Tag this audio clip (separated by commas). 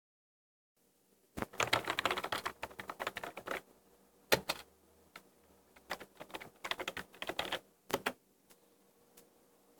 home sounds, Typing